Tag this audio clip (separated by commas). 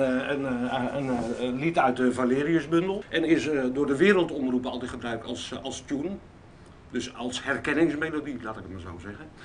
Speech